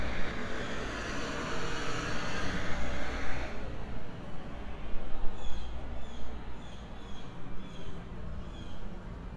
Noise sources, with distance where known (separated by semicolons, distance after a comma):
medium-sounding engine, near